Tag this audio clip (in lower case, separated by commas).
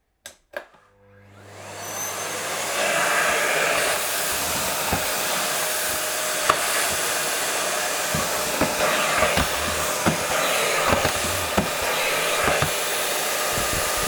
home sounds